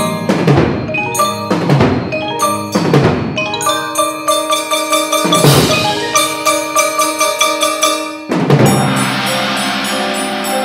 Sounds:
Percussion, Drum kit, Snare drum, Rimshot, Bass drum, Drum

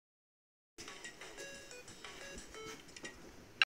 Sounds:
Music

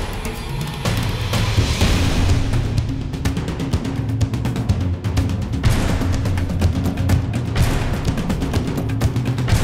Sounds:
Music

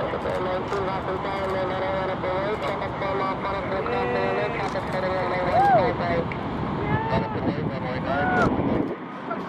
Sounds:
Speech

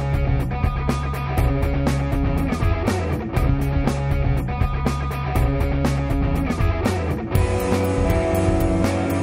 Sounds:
Music

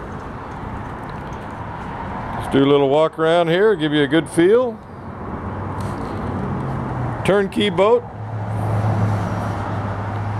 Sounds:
Speech

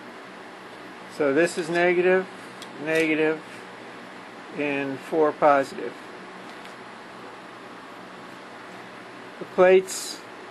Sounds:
Speech

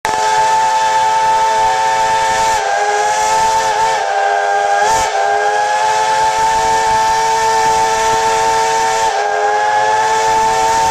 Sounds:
Steam whistle

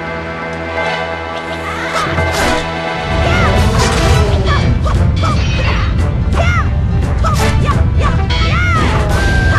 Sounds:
Music

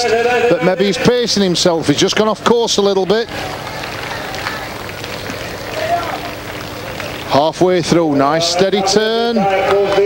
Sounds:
Speech

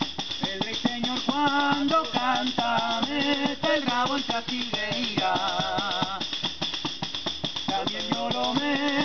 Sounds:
playing tambourine

